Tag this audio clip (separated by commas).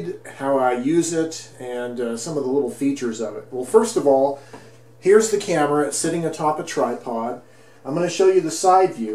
Speech